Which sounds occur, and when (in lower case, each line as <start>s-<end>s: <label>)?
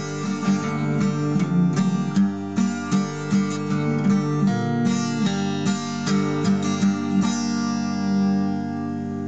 0.0s-9.2s: background noise
0.0s-9.2s: music